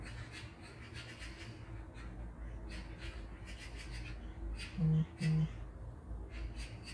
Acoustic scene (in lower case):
park